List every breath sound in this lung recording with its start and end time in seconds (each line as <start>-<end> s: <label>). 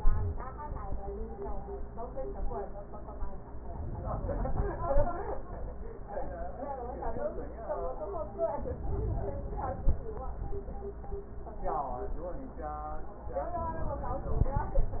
3.64-5.14 s: inhalation
8.50-9.90 s: inhalation